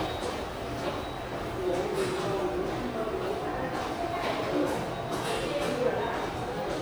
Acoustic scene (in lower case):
subway station